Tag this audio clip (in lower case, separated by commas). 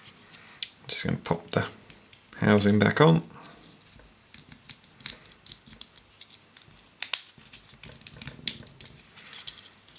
speech, inside a small room